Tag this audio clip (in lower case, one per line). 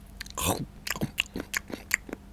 mastication